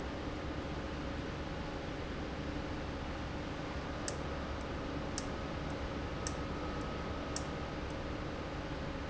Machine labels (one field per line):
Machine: valve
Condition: abnormal